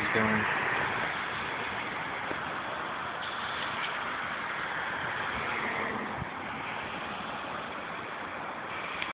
Car is passing by